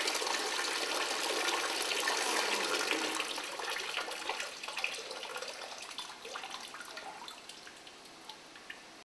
A gurgling stream of liquid is passing by